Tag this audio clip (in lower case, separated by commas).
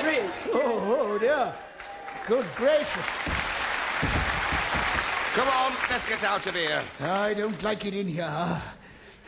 speech, inside a large room or hall